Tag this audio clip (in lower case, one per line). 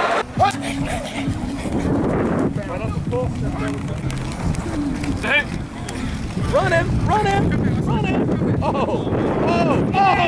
speech